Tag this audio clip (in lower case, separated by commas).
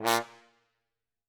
musical instrument, brass instrument, music